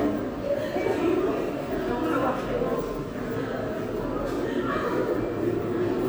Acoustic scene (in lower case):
subway station